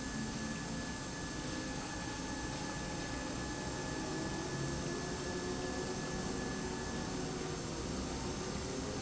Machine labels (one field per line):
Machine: pump